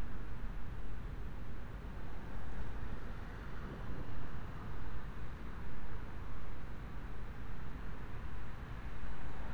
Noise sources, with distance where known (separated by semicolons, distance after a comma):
background noise